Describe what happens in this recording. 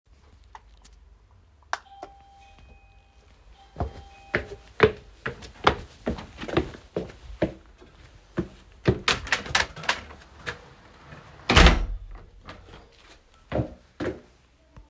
The doorbell rang. I walked over to the front door and opened it to see who was there.